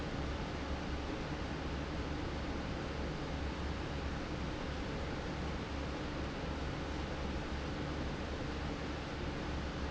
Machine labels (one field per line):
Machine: fan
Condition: abnormal